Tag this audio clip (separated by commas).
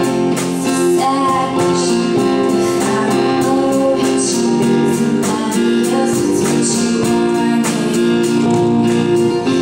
Music, Female singing